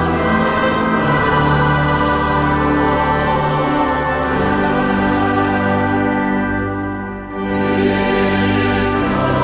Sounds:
music

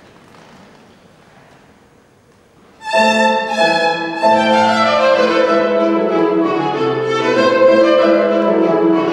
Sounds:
music
fiddle
musical instrument

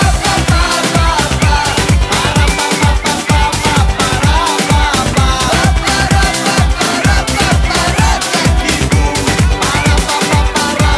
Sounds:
music
dance music
pop music

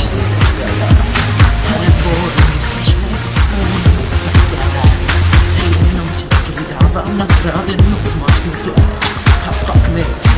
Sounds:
music

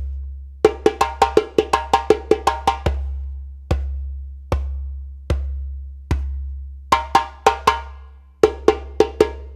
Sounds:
playing djembe

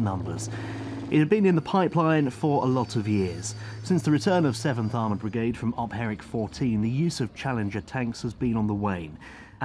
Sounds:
speech

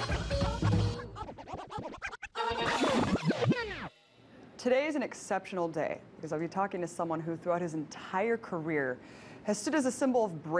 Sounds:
inside a large room or hall
speech

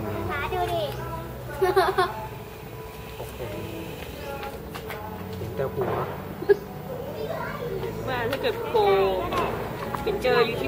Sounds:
speech

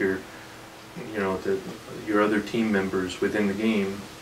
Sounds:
speech

